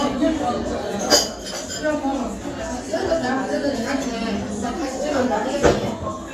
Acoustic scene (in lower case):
restaurant